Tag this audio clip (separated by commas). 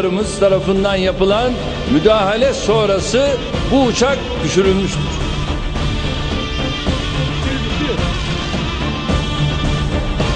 Music, Speech